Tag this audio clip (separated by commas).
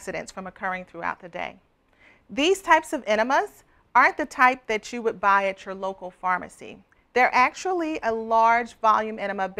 Speech